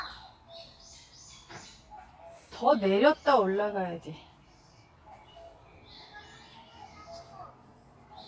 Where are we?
in a park